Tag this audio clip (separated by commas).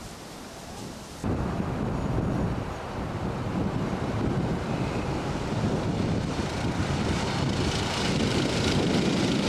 Rail transport, Train, Vehicle, Railroad car